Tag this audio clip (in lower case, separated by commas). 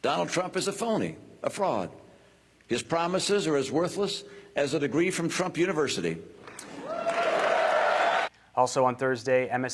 monologue, male speech, speech